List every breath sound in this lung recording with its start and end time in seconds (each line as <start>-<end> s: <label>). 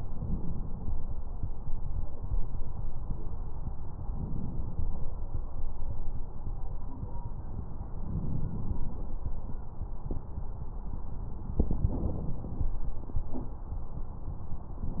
0.20-1.21 s: inhalation
4.01-5.31 s: inhalation
8.09-9.16 s: inhalation
8.09-9.16 s: crackles
11.62-12.69 s: inhalation